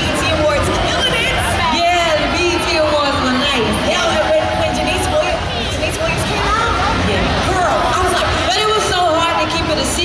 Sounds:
Speech

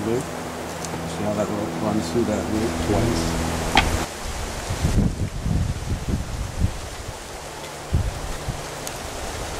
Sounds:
Speech, White noise

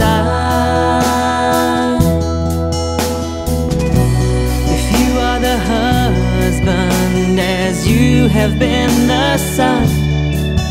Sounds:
Music

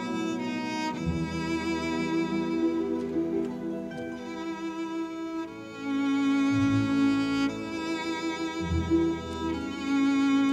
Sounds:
Double bass, Cello, Bowed string instrument

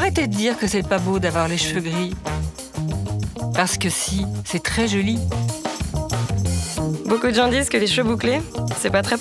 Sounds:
Speech, Music

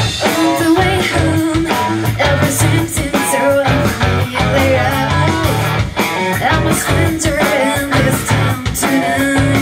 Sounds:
Music

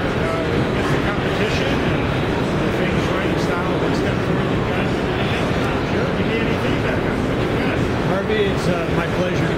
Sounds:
Speech

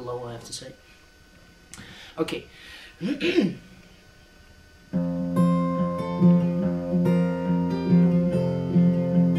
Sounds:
Guitar, Music, Musical instrument, Speech

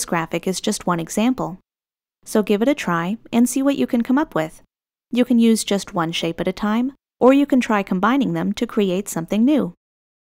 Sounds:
Speech

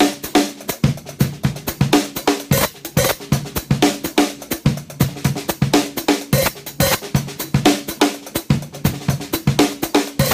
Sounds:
Music, Percussion

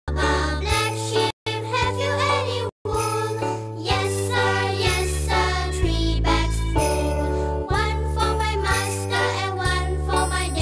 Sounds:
Music

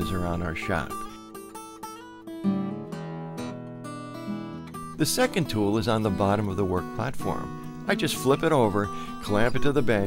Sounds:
Speech, Music

